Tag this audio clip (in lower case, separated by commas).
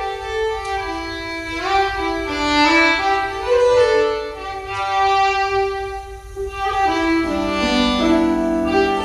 fiddle, musical instrument, music